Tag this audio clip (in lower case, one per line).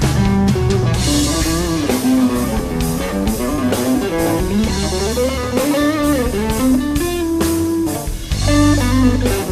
music